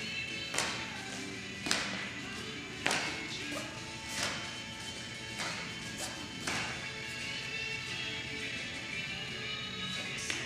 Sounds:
Music

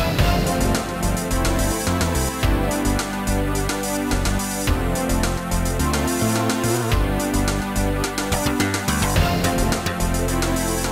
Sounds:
Music

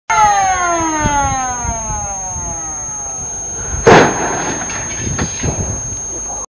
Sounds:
Door, Burst, Explosion

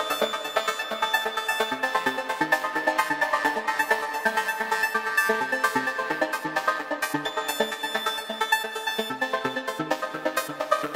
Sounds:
Music

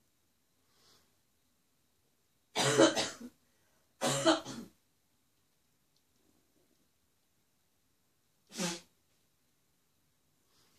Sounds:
Cough

